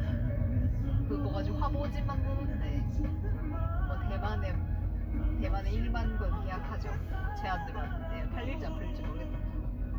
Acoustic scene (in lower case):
car